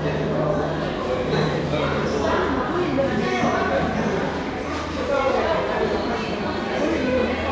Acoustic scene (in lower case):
crowded indoor space